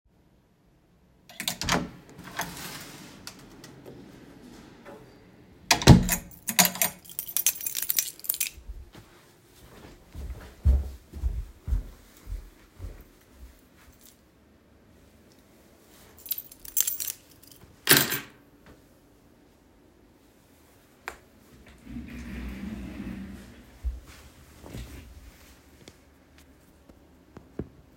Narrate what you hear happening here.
I opened the door and entered my house, carrying my phone(recording device). My keys were making noise as I opened the door to enter, then after I had walked to my desk, they repeatedly made noise as I set them down. Afterwards, I moved my chair and sat down in it.